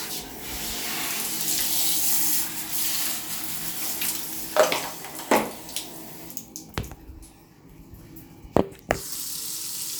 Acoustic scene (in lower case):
restroom